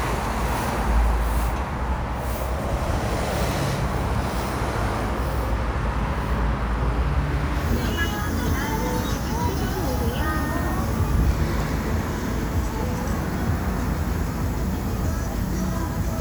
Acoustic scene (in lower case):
street